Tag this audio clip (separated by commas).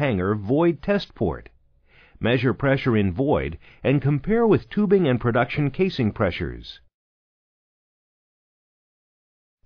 Speech